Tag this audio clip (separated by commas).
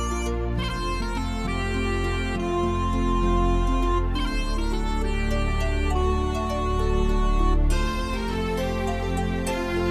Music, New-age music